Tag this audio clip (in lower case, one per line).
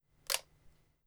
mechanisms
camera